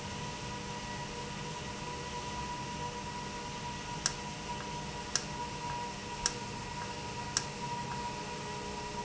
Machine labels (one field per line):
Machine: valve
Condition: normal